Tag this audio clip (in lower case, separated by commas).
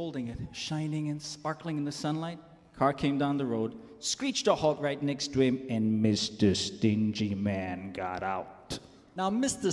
speech